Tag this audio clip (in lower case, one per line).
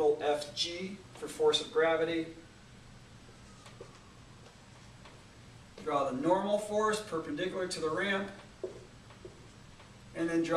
speech